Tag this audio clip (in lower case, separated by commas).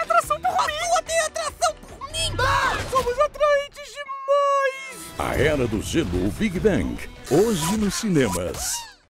speech, music